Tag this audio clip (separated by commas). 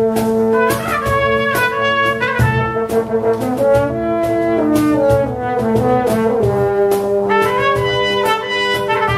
Brass instrument, Trumpet, Trombone